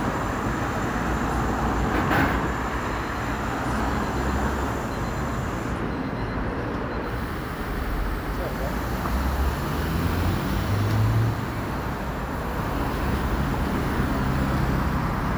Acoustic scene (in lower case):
street